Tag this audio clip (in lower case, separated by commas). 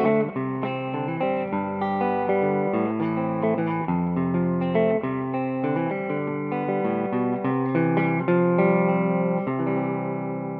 music, musical instrument, guitar